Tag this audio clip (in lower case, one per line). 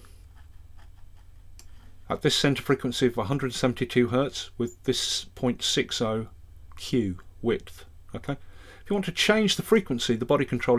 speech